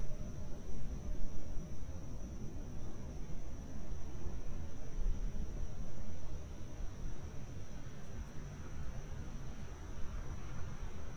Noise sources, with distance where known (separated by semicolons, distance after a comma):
background noise